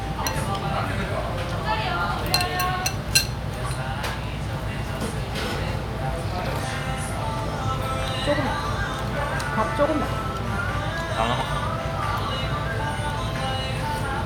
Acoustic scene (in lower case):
restaurant